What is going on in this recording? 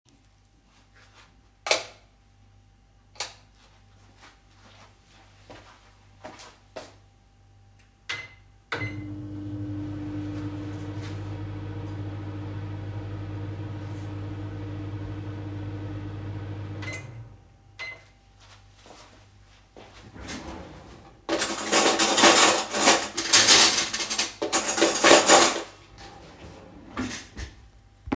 I turned the light on and off and walked across the kitchen. I started the microwave and then opened a drawer to take out some cutlery, causing a clattering sound.